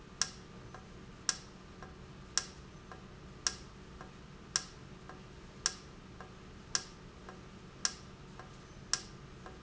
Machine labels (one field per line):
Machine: valve